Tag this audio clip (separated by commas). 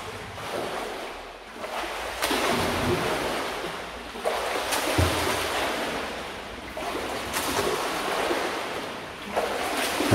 swimming